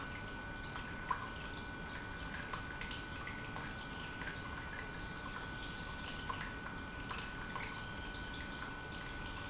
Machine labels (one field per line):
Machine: pump